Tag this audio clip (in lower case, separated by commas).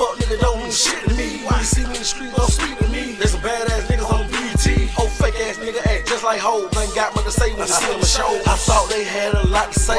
music